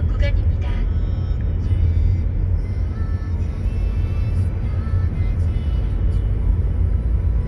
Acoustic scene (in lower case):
car